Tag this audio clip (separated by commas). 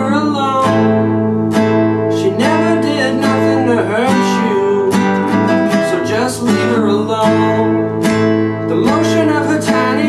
Music